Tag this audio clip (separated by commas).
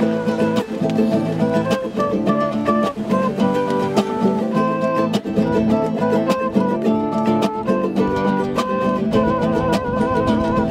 outside, rural or natural, Music